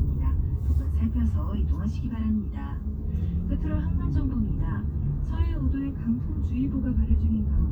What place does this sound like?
car